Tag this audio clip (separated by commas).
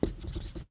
Domestic sounds, Writing